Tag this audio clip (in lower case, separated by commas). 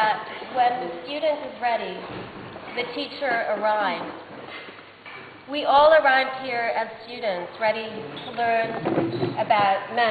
narration, speech, woman speaking